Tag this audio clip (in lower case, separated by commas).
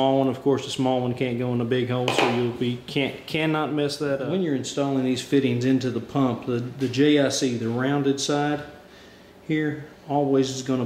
speech, inside a small room